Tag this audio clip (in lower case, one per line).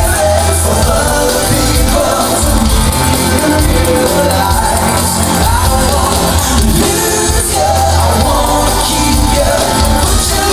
music